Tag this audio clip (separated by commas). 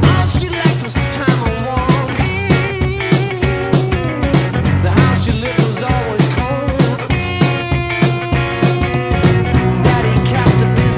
Music